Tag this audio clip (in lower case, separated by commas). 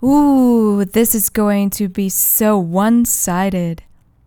human voice, speech, woman speaking